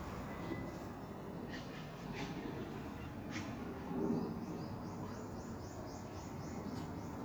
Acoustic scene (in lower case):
street